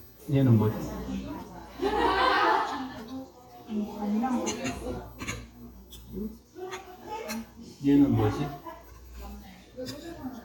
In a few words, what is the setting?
restaurant